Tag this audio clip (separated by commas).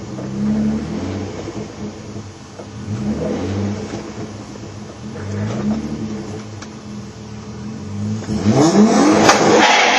Car passing by, Vehicle, Car